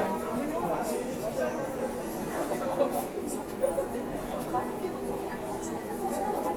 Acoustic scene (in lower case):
subway station